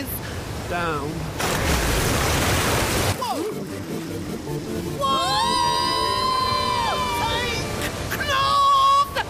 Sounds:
Music, Speech

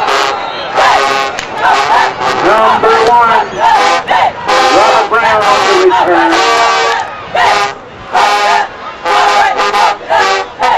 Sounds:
Music, Speech

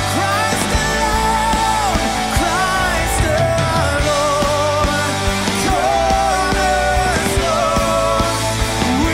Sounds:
Music

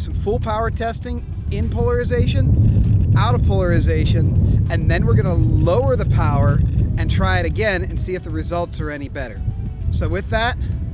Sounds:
Speech, Music

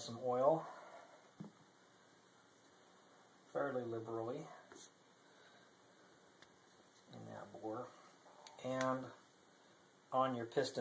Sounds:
Speech

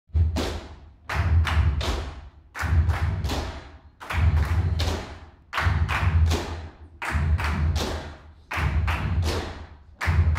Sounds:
tap dancing

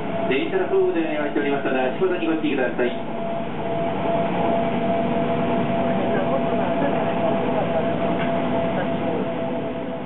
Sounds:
Vehicle, Speech

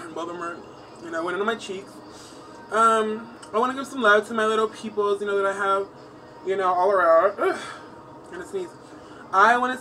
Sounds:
Music, Speech

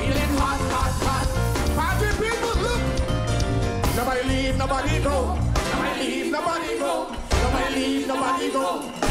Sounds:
Music

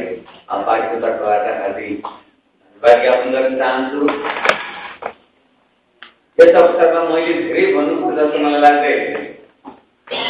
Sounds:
man speaking, monologue, Speech

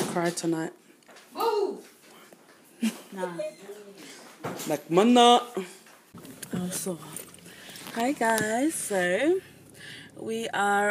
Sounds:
Speech, inside a large room or hall

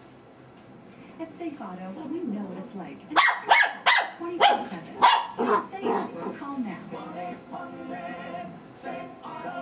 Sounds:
Music, Bow-wow, Speech

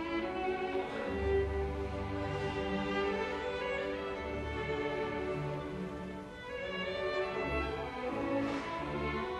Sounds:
fiddle, Music, Musical instrument

